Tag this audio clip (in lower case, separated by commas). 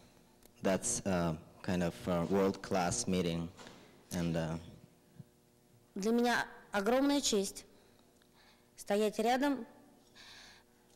male speech, monologue, female speech, speech